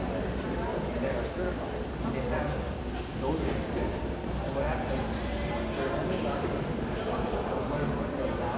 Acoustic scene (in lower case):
crowded indoor space